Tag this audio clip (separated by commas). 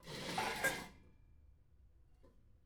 dishes, pots and pans, Domestic sounds